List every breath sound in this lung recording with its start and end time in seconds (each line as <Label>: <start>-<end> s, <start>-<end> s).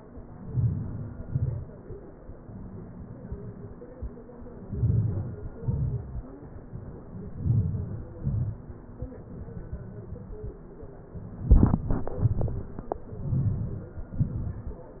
Inhalation: 0.44-1.05 s, 4.65-5.39 s, 7.42-8.05 s, 13.29-13.94 s
Exhalation: 1.24-1.65 s, 5.64-6.12 s, 8.21-8.65 s, 14.26-14.74 s